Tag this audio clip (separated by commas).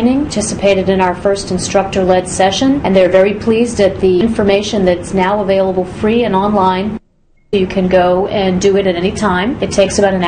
Speech